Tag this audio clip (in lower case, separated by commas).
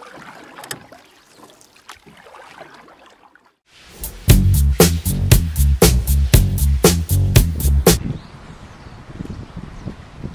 outside, rural or natural, music